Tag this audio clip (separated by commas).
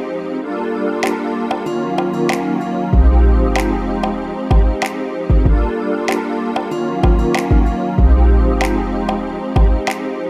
Music